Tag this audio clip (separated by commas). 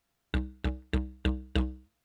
Music, Musical instrument